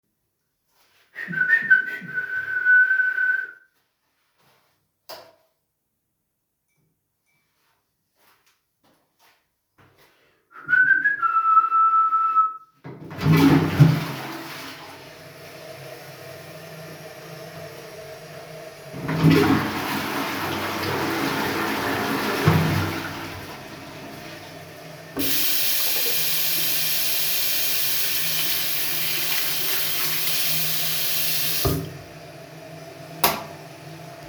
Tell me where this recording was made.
lavatory, bathroom